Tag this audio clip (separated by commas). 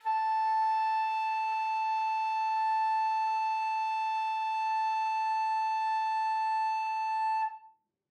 Musical instrument, woodwind instrument, Music